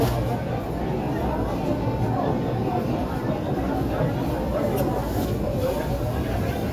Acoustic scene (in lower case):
crowded indoor space